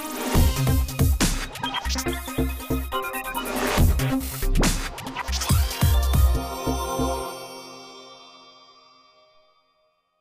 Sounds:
music

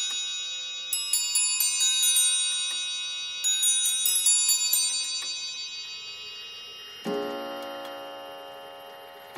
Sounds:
tick-tock, speech, music

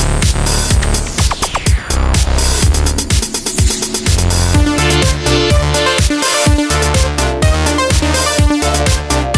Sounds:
soundtrack music, electronic music, music

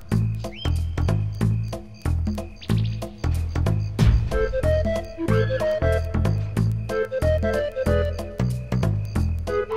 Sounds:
music

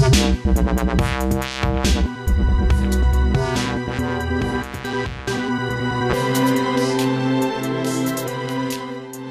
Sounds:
music, electronic music, dubstep

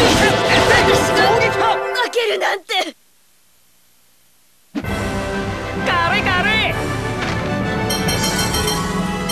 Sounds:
speech, music

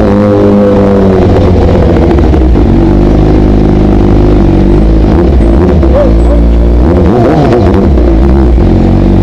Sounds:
motorcycle, speech, vehicle, outside, urban or man-made

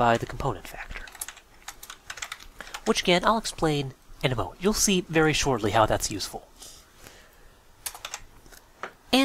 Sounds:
speech, typing

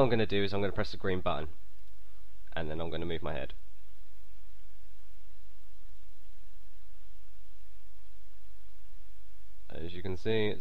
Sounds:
speech

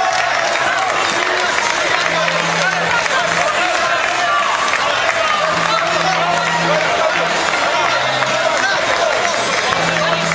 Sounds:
speech, music

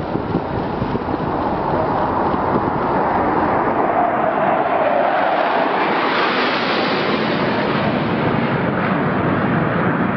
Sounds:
wind noise, wind, wind noise (microphone)

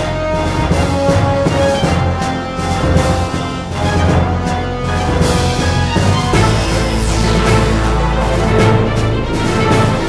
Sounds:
music

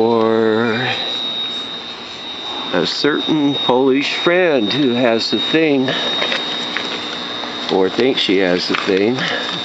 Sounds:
speech

